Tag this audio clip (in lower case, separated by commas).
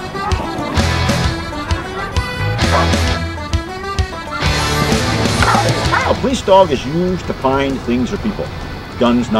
speech, pets, bow-wow, whimper (dog), animal, dog, music